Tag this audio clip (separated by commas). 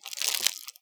crinkling